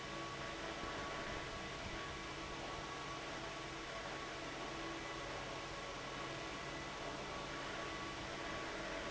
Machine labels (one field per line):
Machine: fan